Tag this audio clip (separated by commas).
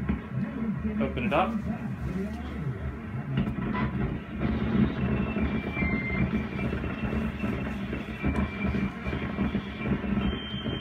Speech